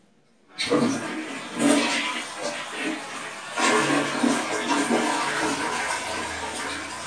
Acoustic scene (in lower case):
restroom